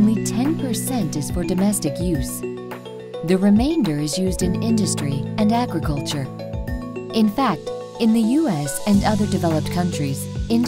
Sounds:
music, speech

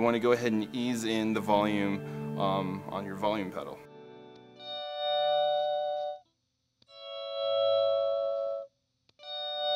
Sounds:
musical instrument, guitar, plucked string instrument, speech, inside a small room, effects unit, music

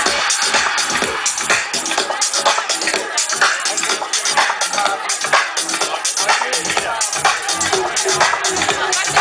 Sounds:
music, speech

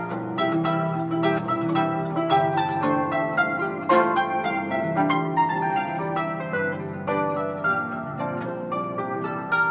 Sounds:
plucked string instrument, inside a small room, music, musical instrument, harp, playing harp

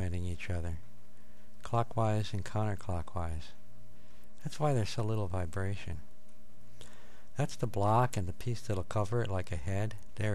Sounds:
speech

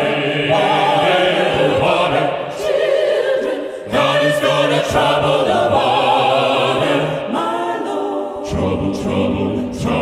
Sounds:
music

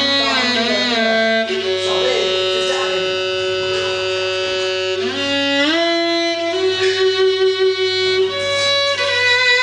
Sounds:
music, speech

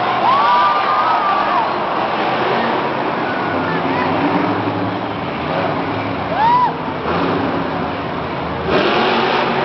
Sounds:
vehicle, truck

